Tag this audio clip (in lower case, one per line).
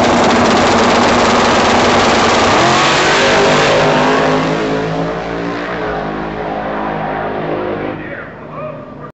speech